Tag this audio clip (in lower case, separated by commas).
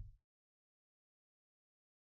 bass drum, music, percussion, musical instrument, drum